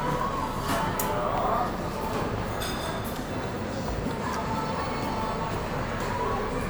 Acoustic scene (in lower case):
cafe